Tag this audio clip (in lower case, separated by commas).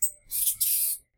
wild animals, animal